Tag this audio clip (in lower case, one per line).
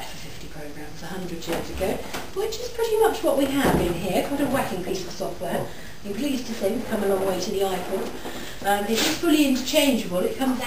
speech